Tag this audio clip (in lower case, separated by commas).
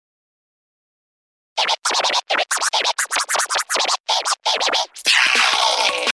musical instrument, music, scratching (performance technique)